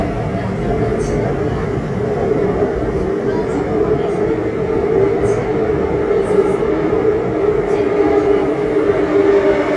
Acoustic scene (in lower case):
subway train